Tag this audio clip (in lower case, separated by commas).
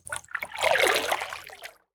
liquid, splash